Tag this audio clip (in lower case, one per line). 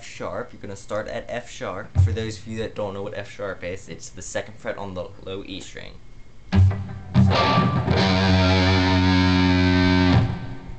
speech
music
musical instrument
guitar
plucked string instrument